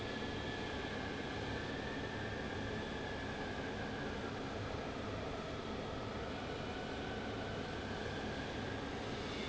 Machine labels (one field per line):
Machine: fan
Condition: abnormal